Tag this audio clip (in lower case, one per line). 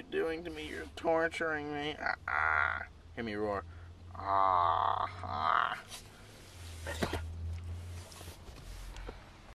speech